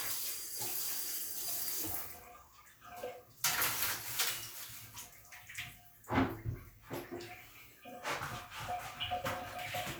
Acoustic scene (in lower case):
restroom